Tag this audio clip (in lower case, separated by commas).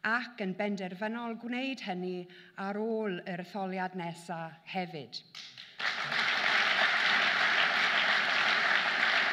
speech, narration, female speech